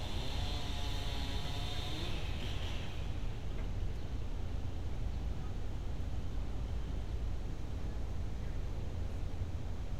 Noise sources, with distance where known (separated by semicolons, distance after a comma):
unidentified powered saw, far